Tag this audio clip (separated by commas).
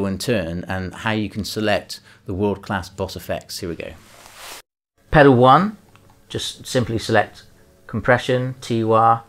Speech